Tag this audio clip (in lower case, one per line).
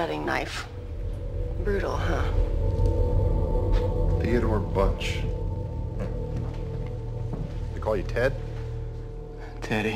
speech